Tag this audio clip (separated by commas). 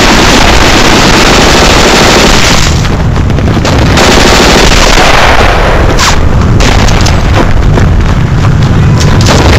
Machine gun, gunfire